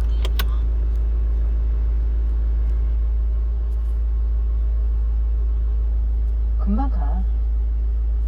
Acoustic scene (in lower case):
car